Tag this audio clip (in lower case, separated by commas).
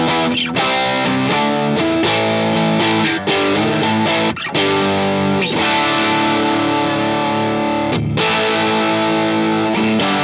music, electric guitar, tapping (guitar technique)